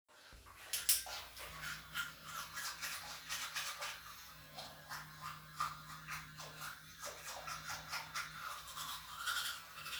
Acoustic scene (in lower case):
restroom